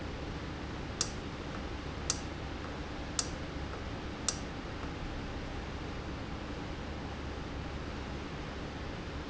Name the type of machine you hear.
valve